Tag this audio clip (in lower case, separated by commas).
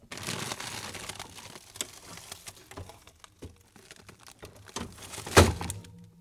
crinkling